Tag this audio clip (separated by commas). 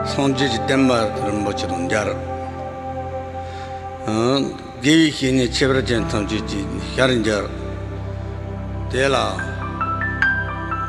Speech, Music